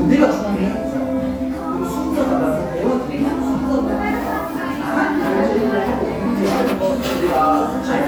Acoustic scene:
cafe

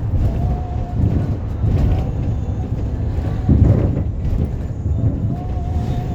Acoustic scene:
bus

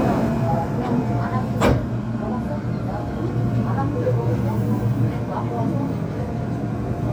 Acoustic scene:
subway station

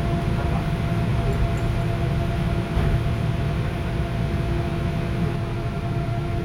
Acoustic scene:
subway train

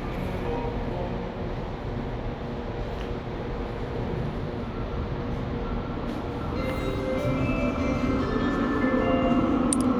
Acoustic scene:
subway station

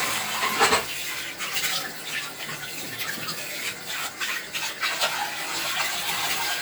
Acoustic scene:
kitchen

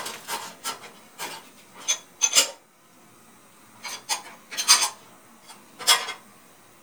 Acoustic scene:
kitchen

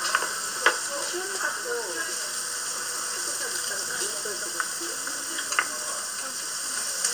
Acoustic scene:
restaurant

